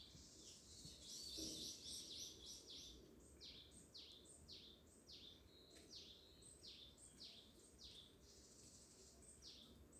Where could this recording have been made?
in a park